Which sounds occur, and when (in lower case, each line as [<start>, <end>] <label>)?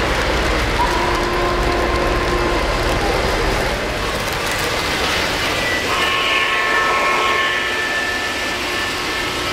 [0.01, 9.52] train
[5.75, 9.52] train whistle